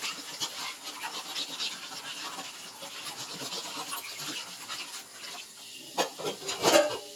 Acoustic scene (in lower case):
kitchen